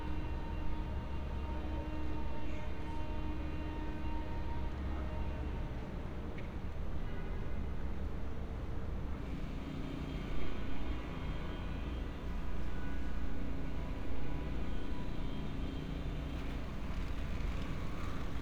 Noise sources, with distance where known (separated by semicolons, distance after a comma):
engine of unclear size; car horn, far